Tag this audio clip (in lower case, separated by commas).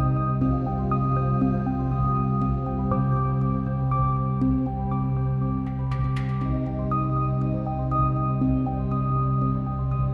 music